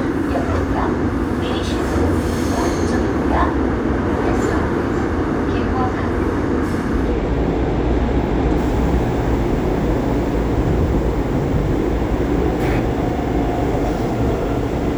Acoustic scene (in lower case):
subway train